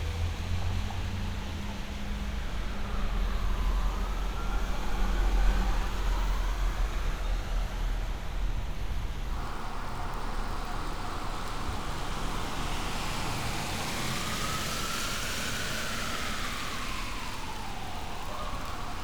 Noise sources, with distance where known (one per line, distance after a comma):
medium-sounding engine
siren, far